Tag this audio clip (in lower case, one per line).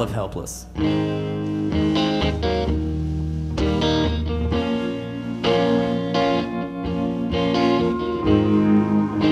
musical instrument
guitar
plucked string instrument
music
speech